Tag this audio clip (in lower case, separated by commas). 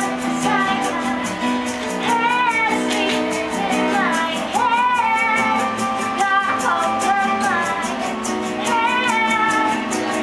music